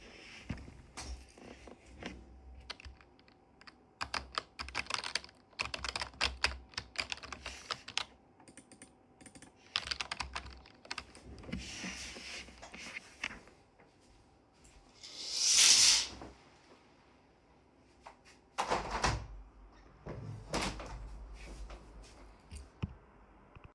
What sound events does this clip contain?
keyboard typing, window